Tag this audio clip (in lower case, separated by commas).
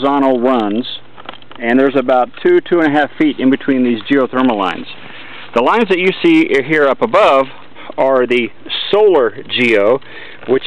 speech